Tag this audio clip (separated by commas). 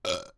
Burping